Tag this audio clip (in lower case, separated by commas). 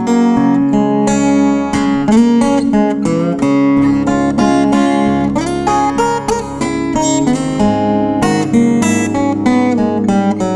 strum, plucked string instrument, music, musical instrument, guitar